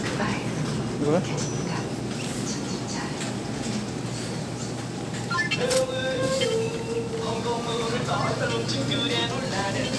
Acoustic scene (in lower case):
crowded indoor space